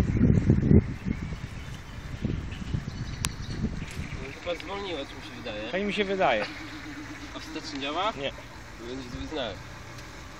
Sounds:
speech

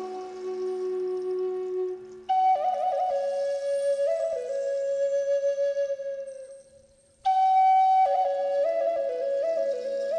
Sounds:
woodwind instrument
flute

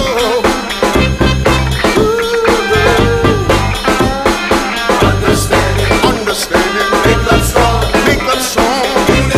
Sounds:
music
hip hop music

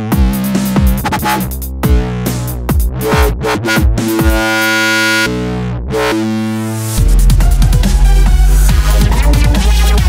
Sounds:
music
dubstep
electronic music

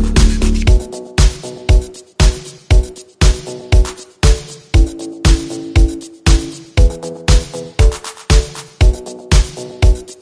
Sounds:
disco
music

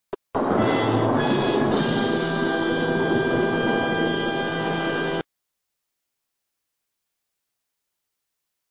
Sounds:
music

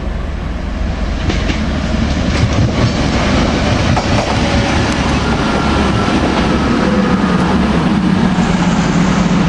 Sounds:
train
train wagon
clickety-clack
subway
rail transport

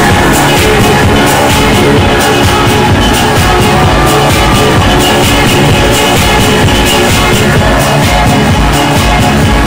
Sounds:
music
disco

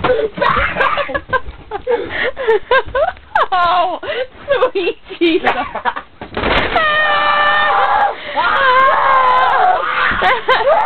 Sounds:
speech

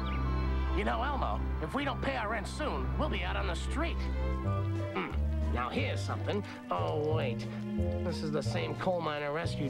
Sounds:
music
speech

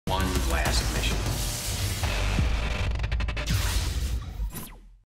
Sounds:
music
speech

